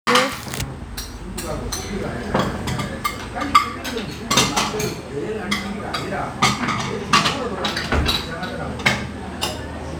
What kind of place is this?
restaurant